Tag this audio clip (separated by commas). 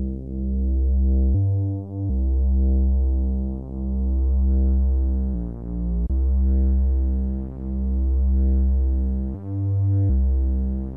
Music